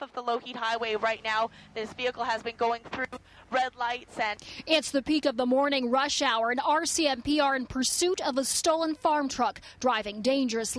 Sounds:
Speech

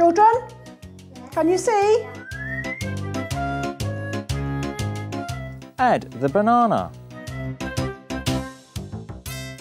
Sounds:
Music, Speech

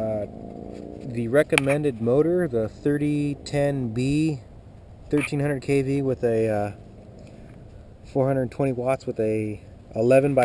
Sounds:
Speech

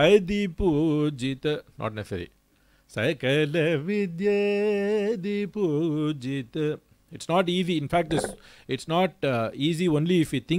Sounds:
Music, Carnatic music, Speech

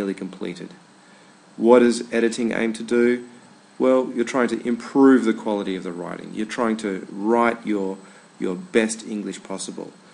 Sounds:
Speech

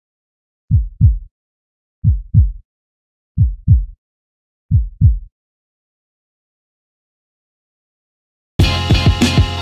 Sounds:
Silence, Music

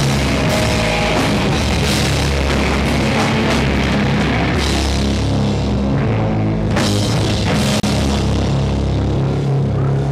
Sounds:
Music

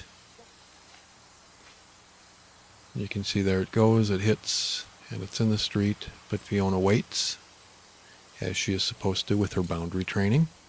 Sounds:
Speech

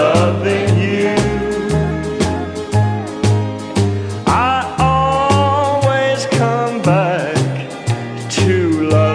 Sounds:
Country, Music

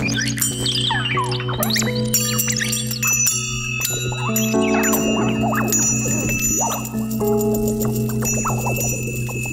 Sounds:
Music, Percussion

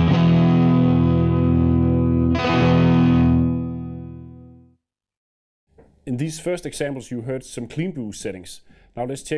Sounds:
Music, Musical instrument, Guitar, Plucked string instrument, Bass guitar

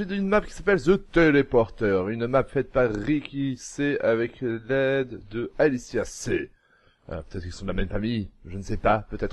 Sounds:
Speech

